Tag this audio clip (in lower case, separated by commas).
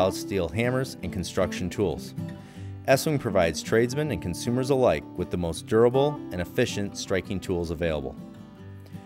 speech, music